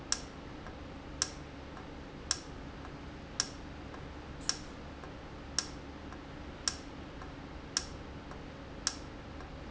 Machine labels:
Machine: valve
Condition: normal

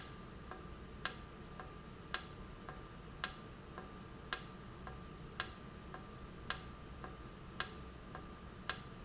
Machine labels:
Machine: valve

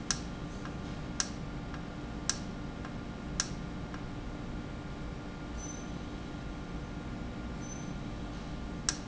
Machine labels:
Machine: valve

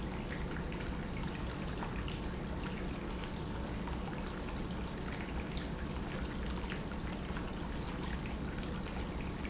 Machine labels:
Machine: pump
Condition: normal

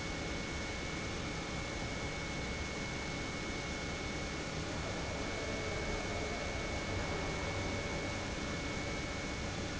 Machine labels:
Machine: pump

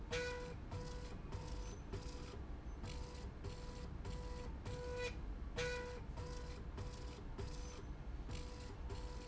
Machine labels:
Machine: slide rail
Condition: normal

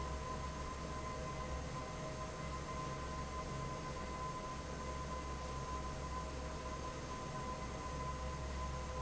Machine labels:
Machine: fan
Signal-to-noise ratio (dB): 0 dB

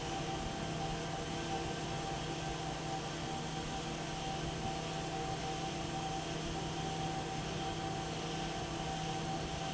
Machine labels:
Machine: fan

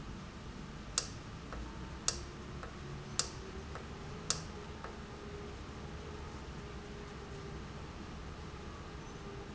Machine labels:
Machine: valve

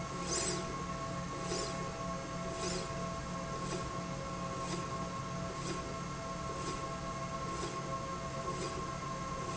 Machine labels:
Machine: slide rail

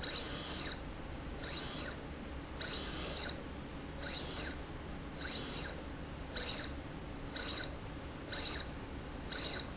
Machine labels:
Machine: slide rail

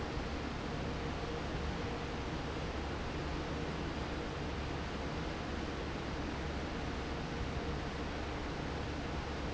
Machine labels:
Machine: fan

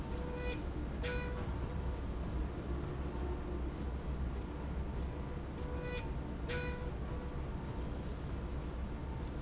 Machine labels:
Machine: slide rail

